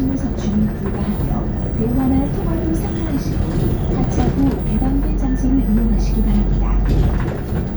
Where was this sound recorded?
on a bus